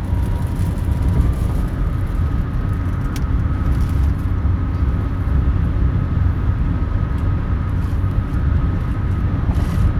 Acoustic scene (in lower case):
car